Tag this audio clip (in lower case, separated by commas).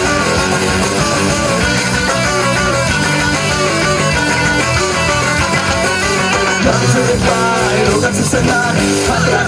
music, jazz, rhythm and blues